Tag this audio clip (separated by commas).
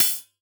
Percussion, Musical instrument, Cymbal, Music, Hi-hat